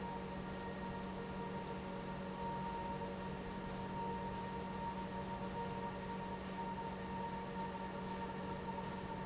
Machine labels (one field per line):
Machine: pump